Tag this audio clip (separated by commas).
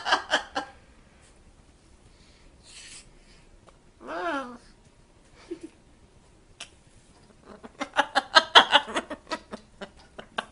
Laughter, Bird, Domestic animals